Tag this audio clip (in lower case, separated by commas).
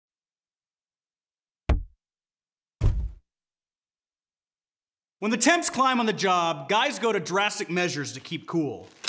speech, knock